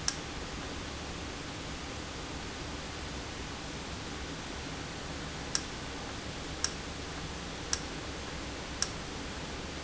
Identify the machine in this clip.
valve